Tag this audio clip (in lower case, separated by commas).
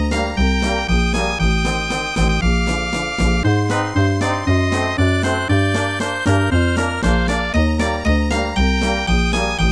music